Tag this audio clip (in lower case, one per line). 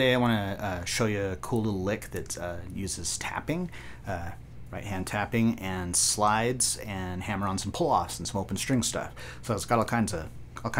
speech